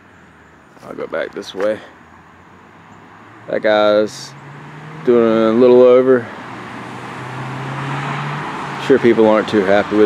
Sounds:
Vehicle, Speech, Car, outside, urban or man-made

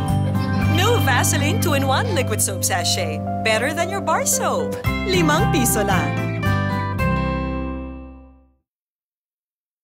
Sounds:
Speech, Music

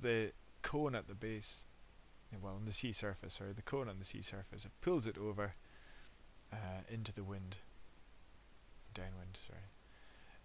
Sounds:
Speech

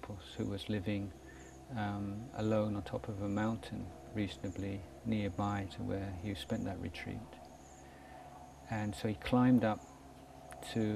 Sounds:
Speech

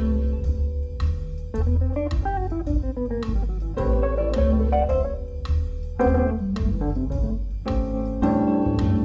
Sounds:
Electronic organ, Organ

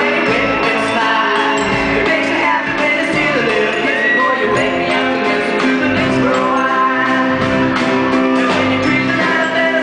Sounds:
Music

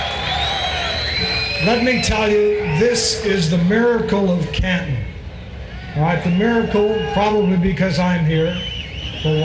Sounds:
Speech, Male speech

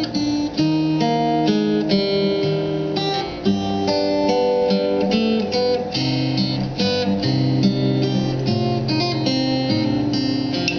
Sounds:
Musical instrument, Music, Guitar, Plucked string instrument, Strum

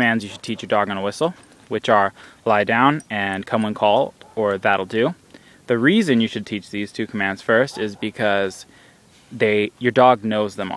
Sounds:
Speech

